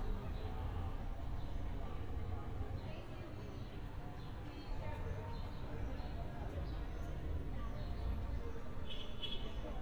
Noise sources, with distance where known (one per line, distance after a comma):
background noise